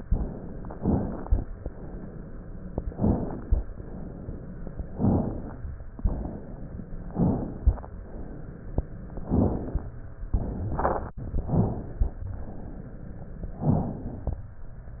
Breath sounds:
Inhalation: 0.72-1.41 s, 2.92-3.60 s, 4.96-5.64 s, 7.04-7.92 s, 9.23-9.94 s, 11.40-12.26 s, 13.62-14.48 s
Exhalation: 1.58-2.56 s, 3.67-4.63 s, 5.96-6.95 s, 8.06-9.05 s, 12.30-13.16 s
Crackles: 0.72-1.41 s, 2.92-3.60 s, 4.96-5.64 s

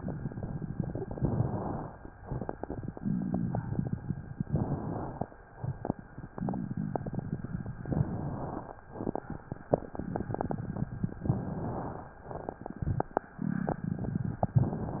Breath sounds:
Inhalation: 1.04-1.94 s, 4.50-5.39 s, 7.93-8.82 s, 11.27-12.16 s

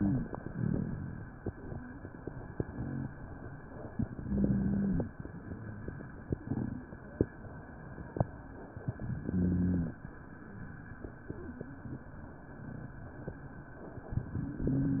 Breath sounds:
Inhalation: 4.10-5.12 s, 9.07-9.98 s
Wheeze: 4.23-5.05 s, 9.26-9.98 s

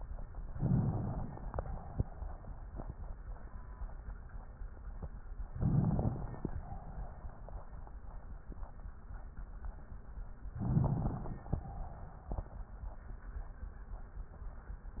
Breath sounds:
Inhalation: 0.53-1.56 s, 5.54-6.47 s, 10.62-11.56 s

